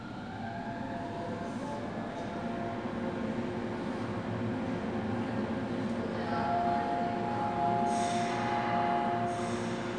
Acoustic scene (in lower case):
subway station